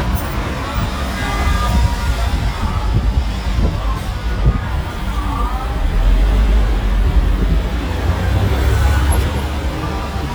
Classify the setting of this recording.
street